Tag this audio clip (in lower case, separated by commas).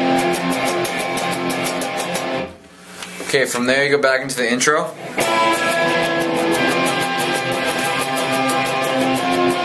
speech, plucked string instrument, musical instrument, guitar, inside a small room, music